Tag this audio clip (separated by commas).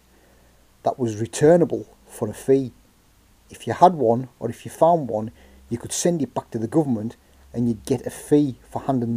Speech